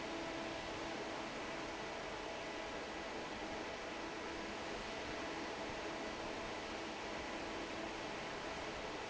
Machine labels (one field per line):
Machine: fan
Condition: normal